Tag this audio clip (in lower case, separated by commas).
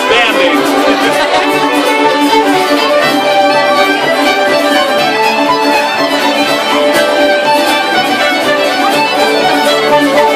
music, speech